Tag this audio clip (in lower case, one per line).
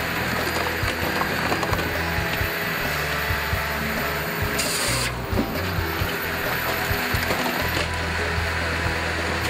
music